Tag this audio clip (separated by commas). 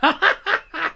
Human voice, Laughter